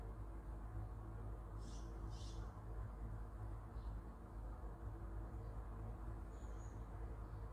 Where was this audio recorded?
in a park